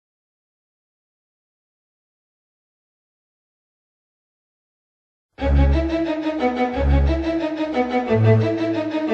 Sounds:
music, bowed string instrument

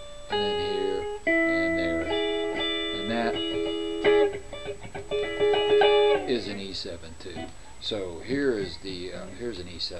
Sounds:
music, guitar, musical instrument, speech, plucked string instrument, electric guitar

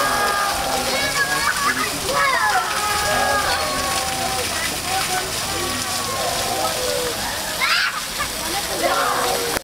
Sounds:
speech

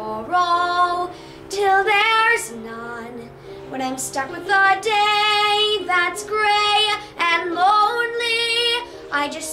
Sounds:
child singing, music, female singing

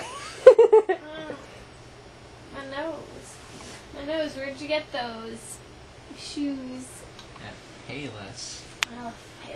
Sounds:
domestic animals, speech

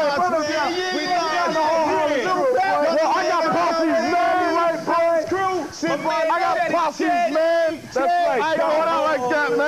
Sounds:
speech

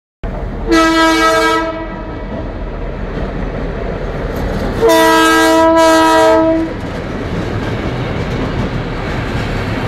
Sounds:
vehicle horn, vehicle, rail transport, train, train wagon

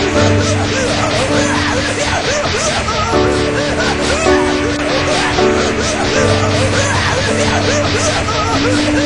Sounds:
music

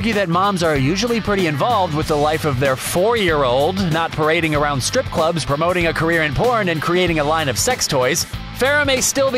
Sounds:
speech, music

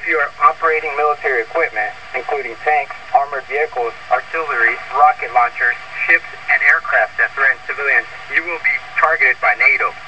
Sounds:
speech

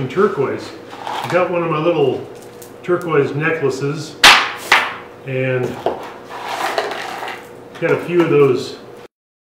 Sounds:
inside a small room, speech

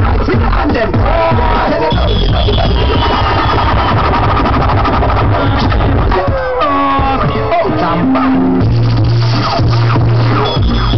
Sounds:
music

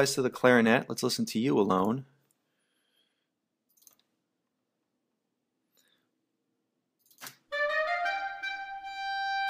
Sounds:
speech, music

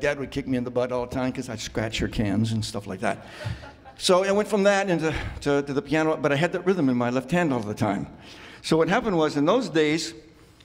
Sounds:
speech

